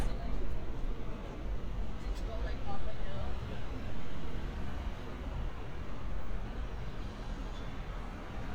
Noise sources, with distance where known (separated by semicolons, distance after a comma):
engine of unclear size; person or small group talking